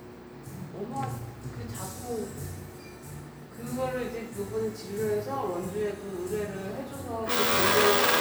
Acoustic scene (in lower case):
cafe